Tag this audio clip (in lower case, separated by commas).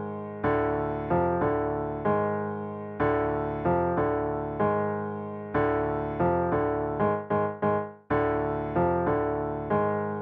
theme music, music